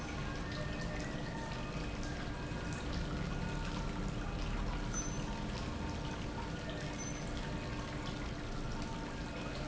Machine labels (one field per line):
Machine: pump